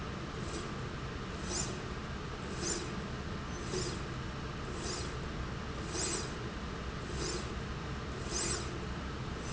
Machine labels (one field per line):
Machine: slide rail